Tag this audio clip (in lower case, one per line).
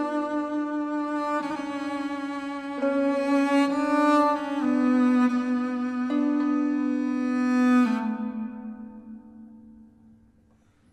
music